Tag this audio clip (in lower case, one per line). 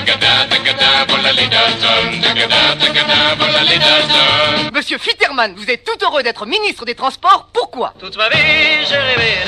music
speech